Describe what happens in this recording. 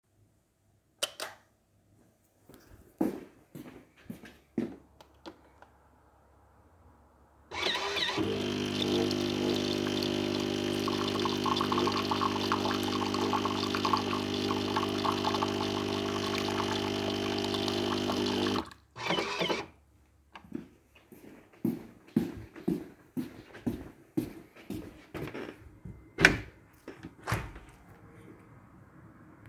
I turned on the light of the kitchen and turned on the coffee machine and after it finished making my coffee I walked to the window and opened it